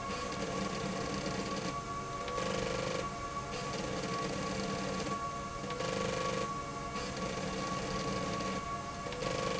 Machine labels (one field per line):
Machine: slide rail